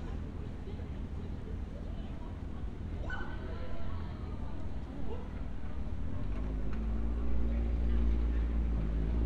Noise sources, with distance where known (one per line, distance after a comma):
person or small group talking, near